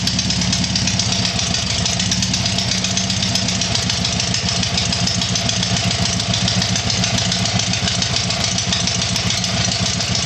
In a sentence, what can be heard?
Sound of lawn mower type engine idling